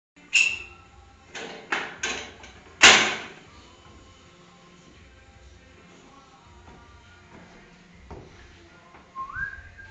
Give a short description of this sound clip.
Clanking followed by whistling